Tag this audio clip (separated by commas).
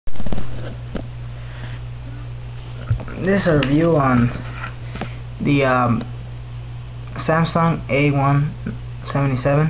Speech